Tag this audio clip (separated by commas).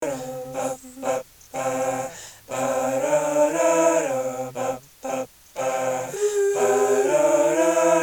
Human voice